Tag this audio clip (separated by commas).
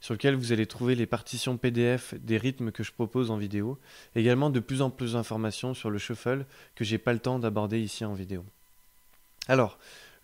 Speech